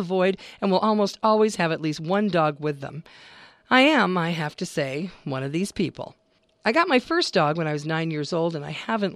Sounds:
speech

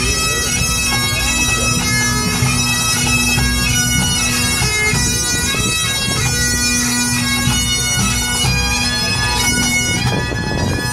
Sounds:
bagpipes

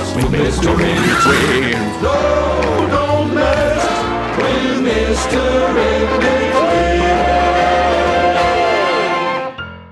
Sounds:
male singing
choir
music

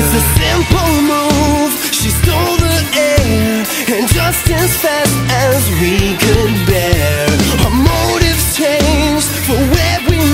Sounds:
music
sad music

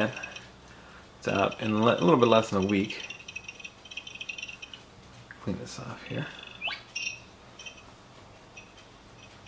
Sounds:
speech

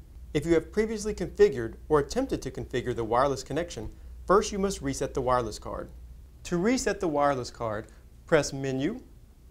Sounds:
speech

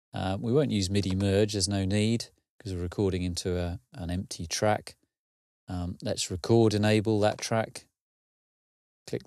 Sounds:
speech

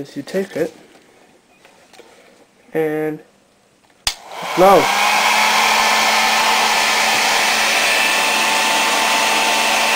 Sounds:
hair dryer

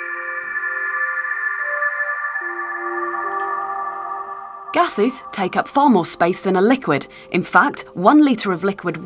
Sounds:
speech
music

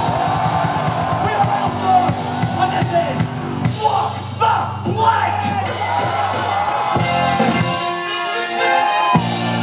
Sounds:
music
speech

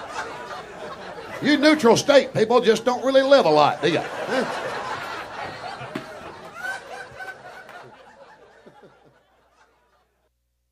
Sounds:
speech

